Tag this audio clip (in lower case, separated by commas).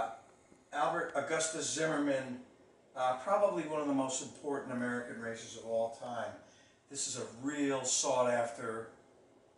speech